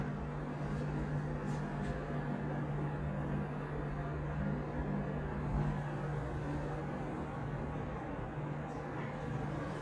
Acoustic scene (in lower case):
elevator